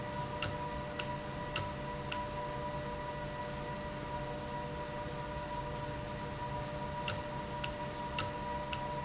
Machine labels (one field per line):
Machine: valve